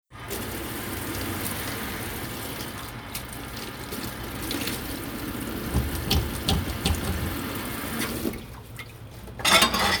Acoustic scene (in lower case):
kitchen